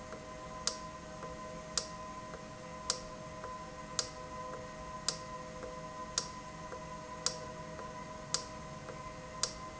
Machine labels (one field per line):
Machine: valve